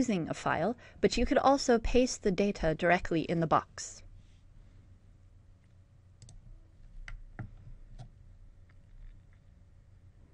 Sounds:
speech

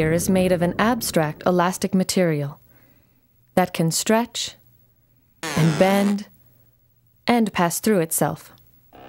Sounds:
speech

